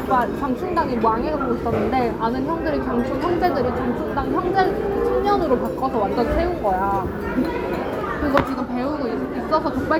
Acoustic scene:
restaurant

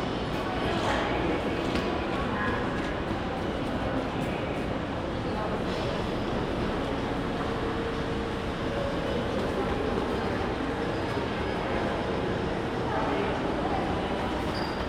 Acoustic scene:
crowded indoor space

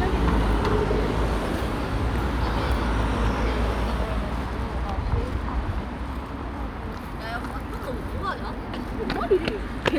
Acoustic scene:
street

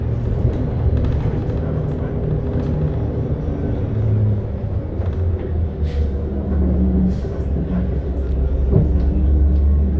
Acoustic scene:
bus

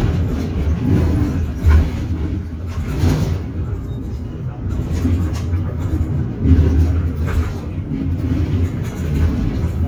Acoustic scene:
bus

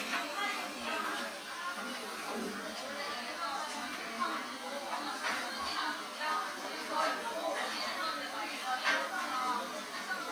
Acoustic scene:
cafe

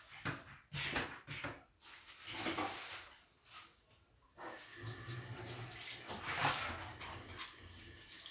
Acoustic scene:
restroom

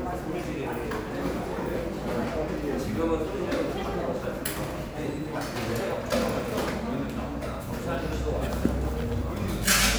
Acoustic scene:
crowded indoor space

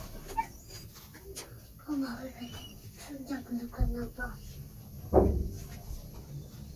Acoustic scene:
elevator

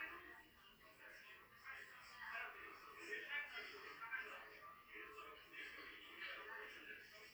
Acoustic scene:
crowded indoor space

